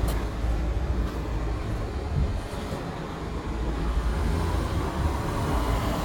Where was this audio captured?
in a residential area